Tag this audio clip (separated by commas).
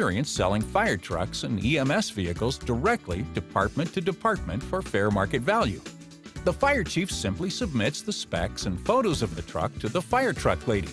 Speech, Music